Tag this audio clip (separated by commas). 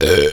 eructation